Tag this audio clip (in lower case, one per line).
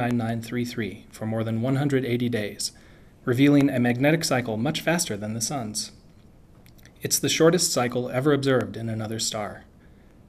speech